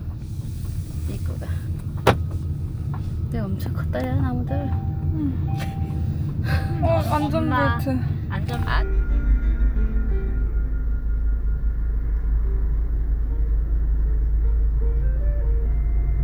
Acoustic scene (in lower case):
car